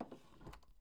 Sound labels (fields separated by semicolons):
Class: drawer; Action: opening; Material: wooden